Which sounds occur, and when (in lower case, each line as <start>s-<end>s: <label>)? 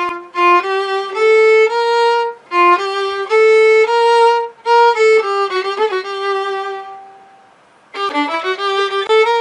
0.0s-7.4s: music
0.0s-9.4s: mechanisms
7.9s-9.4s: music